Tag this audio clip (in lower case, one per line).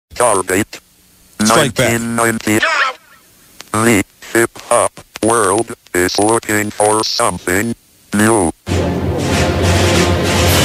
speech
music